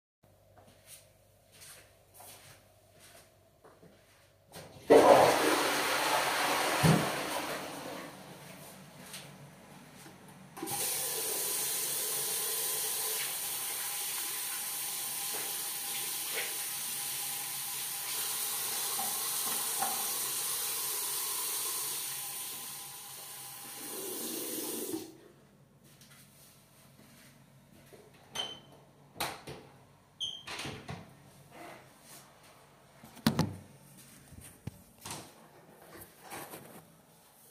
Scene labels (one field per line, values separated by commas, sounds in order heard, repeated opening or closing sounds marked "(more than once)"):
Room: lavatory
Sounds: footsteps, toilet flushing, running water, door (more than once)